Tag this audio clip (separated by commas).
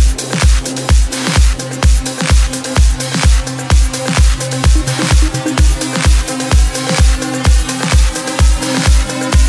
Music